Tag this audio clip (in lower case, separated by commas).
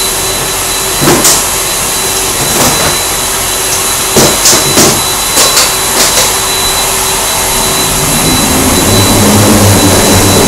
inside a large room or hall